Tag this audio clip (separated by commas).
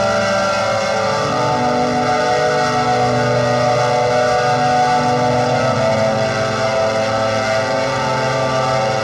Music, Musical instrument